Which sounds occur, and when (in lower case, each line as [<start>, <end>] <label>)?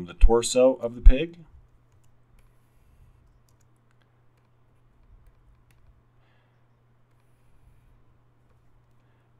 [0.00, 1.50] male speech
[0.00, 9.35] mechanisms
[1.87, 2.02] clicking
[2.34, 2.47] clicking
[2.50, 3.21] surface contact
[3.44, 3.68] clicking
[3.86, 4.03] clicking
[4.31, 4.44] clicking
[4.99, 5.30] clicking
[5.52, 5.82] clicking
[6.15, 6.58] breathing
[7.07, 7.24] clicking
[7.27, 7.99] surface contact
[8.42, 8.57] clicking
[8.84, 9.07] clicking
[8.97, 9.32] breathing